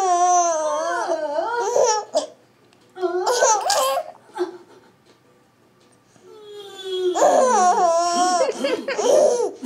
A baby cries and laughs